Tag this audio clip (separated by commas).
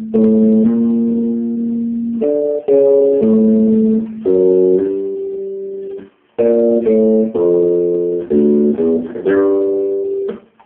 Musical instrument, Music, Guitar, Strum, Plucked string instrument